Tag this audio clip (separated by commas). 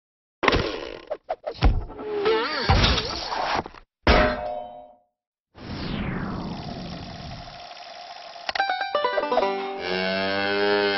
Music